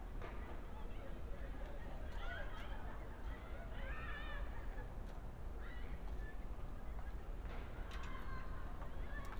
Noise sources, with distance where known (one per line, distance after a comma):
background noise